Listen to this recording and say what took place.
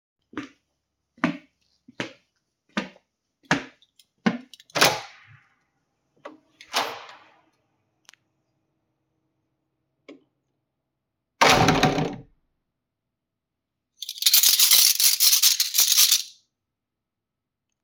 I walked several steps, opened and closed the door, and then jingled my keychain before stopping the recording.